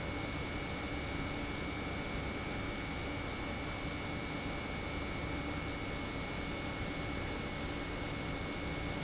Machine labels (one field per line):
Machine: pump